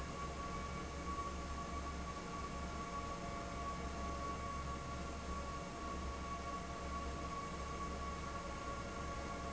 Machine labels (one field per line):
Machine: fan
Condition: abnormal